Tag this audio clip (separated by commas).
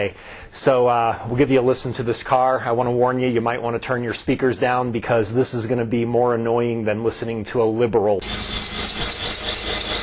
Speech